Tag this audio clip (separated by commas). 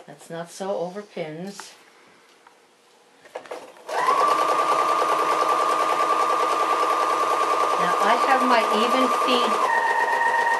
Speech, inside a small room, Sewing machine